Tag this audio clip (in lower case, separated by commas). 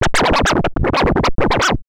scratching (performance technique), musical instrument, music